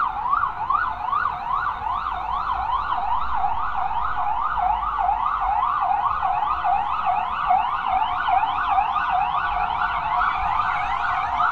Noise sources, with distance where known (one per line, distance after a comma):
siren, near